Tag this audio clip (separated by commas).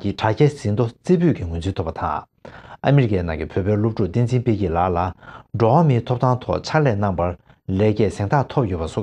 Speech